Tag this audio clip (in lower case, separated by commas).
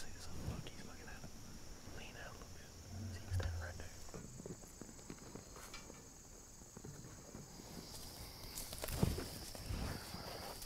walk, speech, outside, rural or natural